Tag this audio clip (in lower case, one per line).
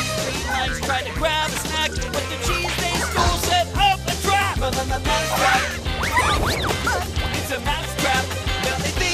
music